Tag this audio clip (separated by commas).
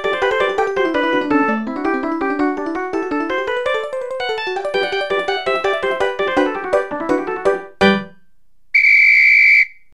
Music